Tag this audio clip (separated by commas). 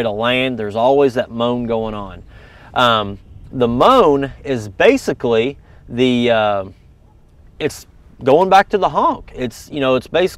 Speech